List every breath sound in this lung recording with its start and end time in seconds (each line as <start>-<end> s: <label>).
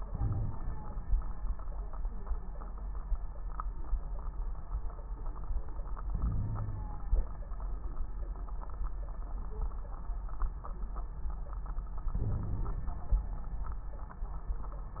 0.00-1.09 s: inhalation
0.09-0.57 s: wheeze
6.08-7.05 s: inhalation
6.17-6.91 s: wheeze
12.12-12.94 s: inhalation
12.24-12.68 s: wheeze